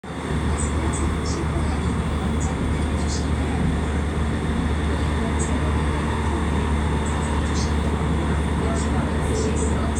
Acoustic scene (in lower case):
subway train